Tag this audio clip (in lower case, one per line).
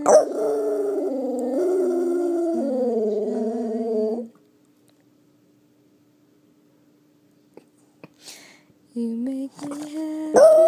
female singing